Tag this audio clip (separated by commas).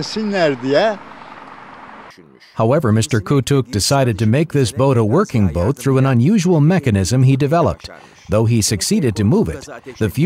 Speech